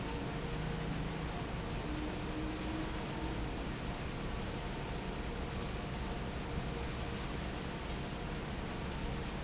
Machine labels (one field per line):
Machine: fan